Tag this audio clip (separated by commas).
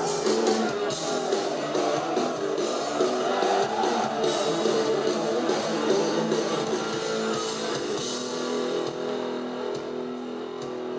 Music